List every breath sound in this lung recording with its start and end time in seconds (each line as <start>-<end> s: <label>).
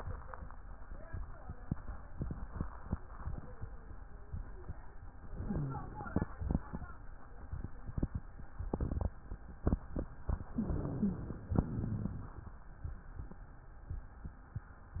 5.29-6.05 s: inhalation
5.29-6.05 s: rhonchi
10.53-11.23 s: wheeze
10.53-11.46 s: inhalation